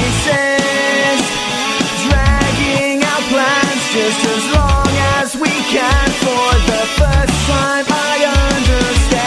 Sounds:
Progressive rock, Heavy metal, Music

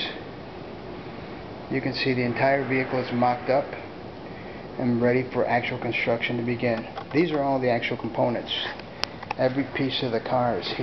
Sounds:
Speech

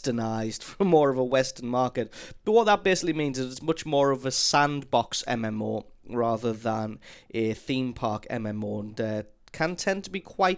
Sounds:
Speech

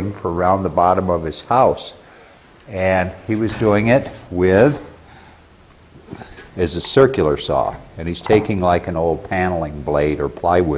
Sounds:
Speech

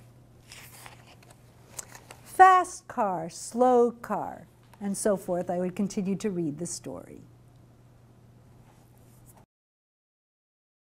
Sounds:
Speech, inside a large room or hall

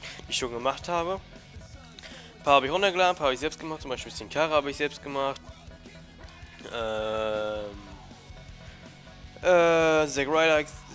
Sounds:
Speech, Music

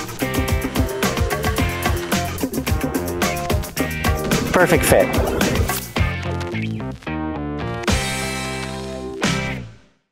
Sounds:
Speech, Music

